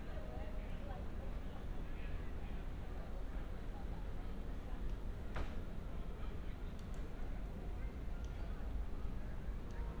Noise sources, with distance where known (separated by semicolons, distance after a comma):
unidentified human voice, far